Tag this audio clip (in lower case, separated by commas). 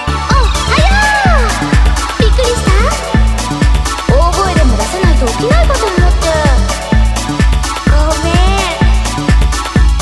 techno, speech, electronic music, music